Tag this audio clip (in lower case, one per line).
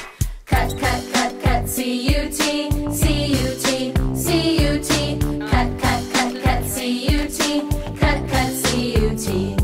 music